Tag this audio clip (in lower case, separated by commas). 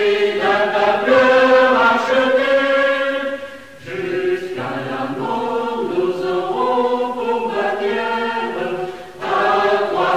mantra